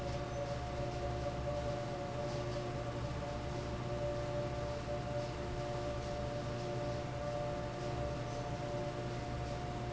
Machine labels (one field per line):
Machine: fan